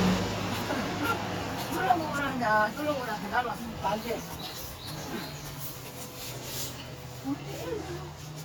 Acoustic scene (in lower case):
residential area